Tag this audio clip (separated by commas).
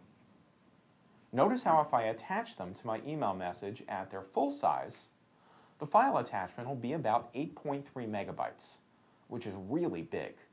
Speech